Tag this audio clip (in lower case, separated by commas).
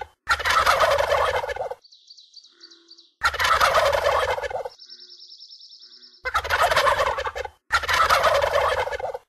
turkey gobbling, turkey, gobble, fowl